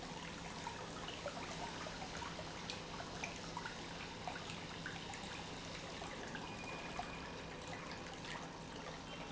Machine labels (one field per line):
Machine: pump